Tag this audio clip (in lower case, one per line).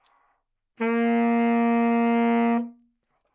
musical instrument
music
woodwind instrument